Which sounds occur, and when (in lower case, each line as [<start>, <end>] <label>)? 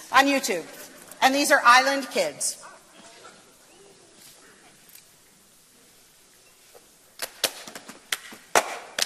[0.00, 9.05] mechanisms
[0.09, 0.70] female speech
[0.10, 1.20] speech
[0.68, 1.12] generic impact sounds
[1.18, 2.76] female speech
[2.57, 2.77] speech
[2.91, 3.34] speech
[3.63, 4.02] speech
[4.10, 4.45] surface contact
[4.83, 5.02] generic impact sounds
[6.28, 6.38] tick
[6.42, 6.61] clink
[6.68, 6.80] tick
[7.17, 7.50] clapping
[7.51, 8.01] hands
[8.07, 8.20] clapping
[8.20, 8.36] generic impact sounds
[8.52, 8.93] generic impact sounds
[8.95, 9.05] clapping